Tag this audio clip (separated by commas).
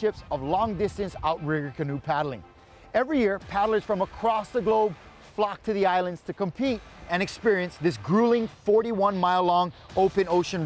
Speech, Music